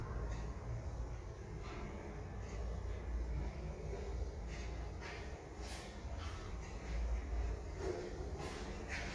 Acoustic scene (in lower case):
elevator